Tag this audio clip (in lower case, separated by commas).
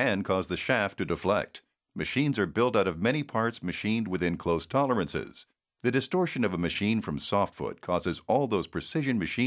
speech